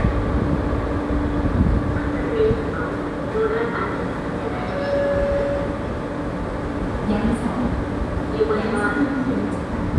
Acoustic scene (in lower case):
subway station